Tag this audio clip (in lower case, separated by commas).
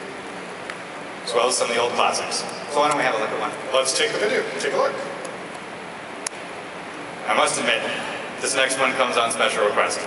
speech